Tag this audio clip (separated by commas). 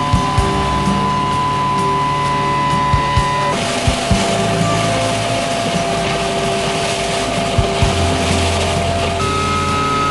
Music